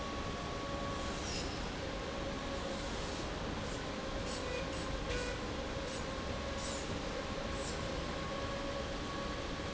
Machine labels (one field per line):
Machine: slide rail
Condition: normal